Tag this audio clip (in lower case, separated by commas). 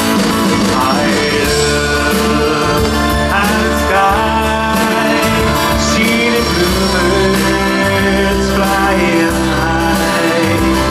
music